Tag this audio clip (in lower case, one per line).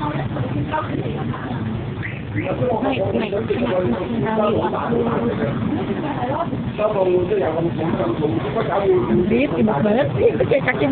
speech